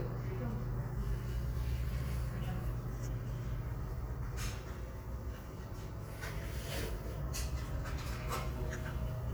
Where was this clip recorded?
in a crowded indoor space